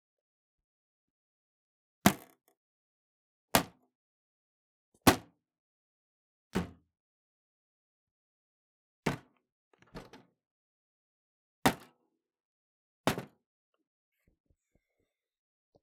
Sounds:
thud

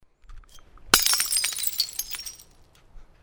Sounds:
Glass, Crushing, Shatter

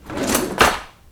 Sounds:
Drawer open or close, silverware, home sounds

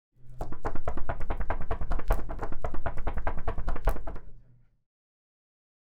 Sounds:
Knock, Domestic sounds, Door

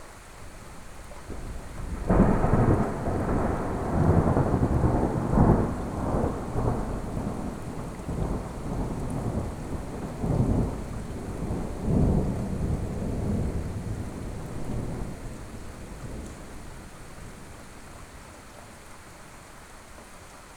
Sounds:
Thunderstorm, Rain, Water, Thunder

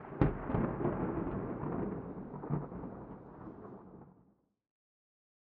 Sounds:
Thunderstorm, Thunder

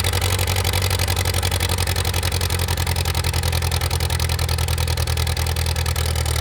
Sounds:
Engine

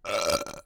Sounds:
eructation

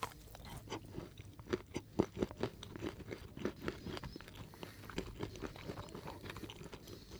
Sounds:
Chewing

